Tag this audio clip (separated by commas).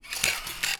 Camera, Mechanisms